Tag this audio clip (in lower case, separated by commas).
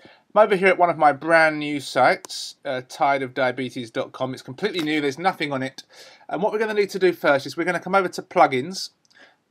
speech